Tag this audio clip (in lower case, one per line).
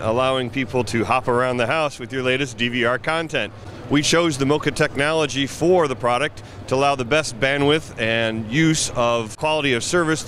speech